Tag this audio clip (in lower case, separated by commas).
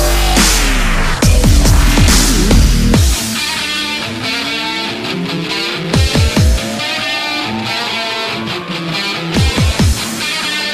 dubstep, music, electronic music